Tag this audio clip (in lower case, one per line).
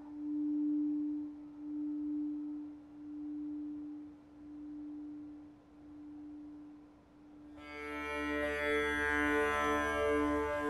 music